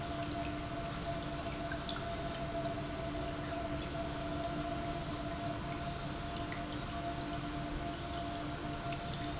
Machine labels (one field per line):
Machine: pump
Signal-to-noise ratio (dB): -6 dB